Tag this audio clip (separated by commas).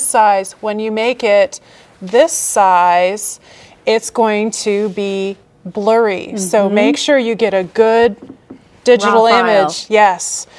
Speech